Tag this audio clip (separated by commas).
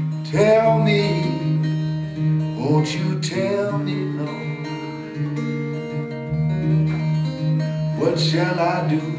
Music